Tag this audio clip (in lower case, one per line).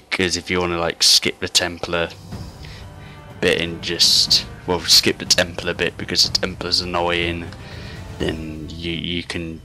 speech
music